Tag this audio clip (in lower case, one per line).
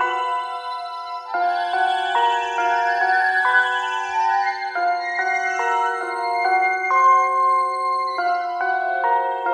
music